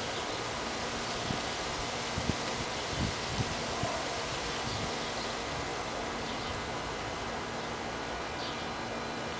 Wind noise with rustling leaves and birds chirping